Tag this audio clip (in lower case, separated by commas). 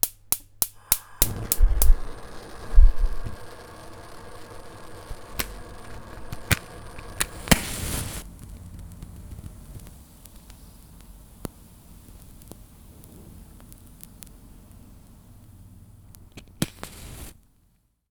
fire